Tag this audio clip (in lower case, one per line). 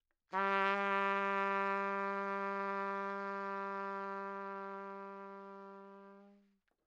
trumpet
brass instrument
music
musical instrument